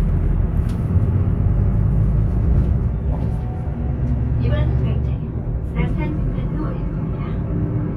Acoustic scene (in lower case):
bus